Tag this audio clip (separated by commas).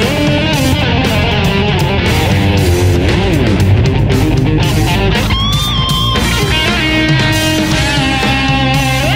Music, Electric guitar, Strum, Musical instrument, Plucked string instrument